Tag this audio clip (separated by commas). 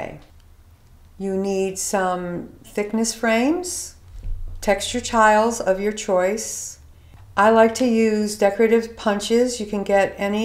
Speech